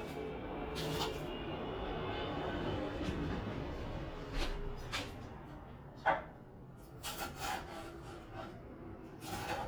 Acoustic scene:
kitchen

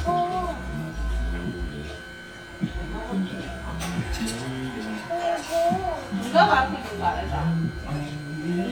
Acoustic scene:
crowded indoor space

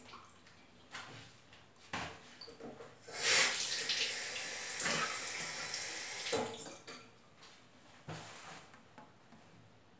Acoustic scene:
restroom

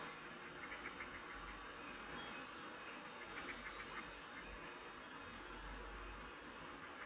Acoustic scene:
park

